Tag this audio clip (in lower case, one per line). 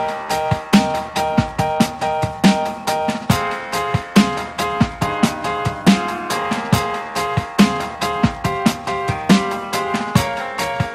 music